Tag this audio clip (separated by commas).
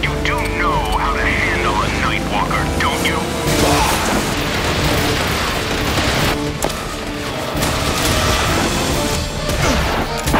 Music, Speech